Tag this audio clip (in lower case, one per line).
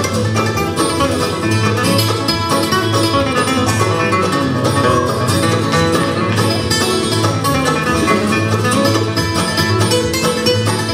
country
bluegrass
music
musical instrument
guitar